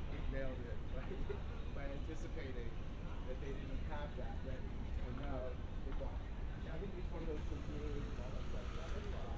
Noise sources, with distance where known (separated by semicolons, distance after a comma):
background noise